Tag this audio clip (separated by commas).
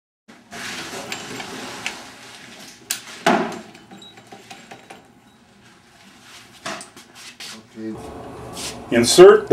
Speech